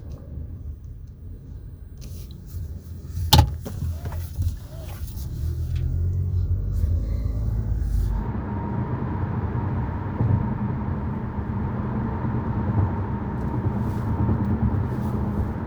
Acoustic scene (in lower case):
car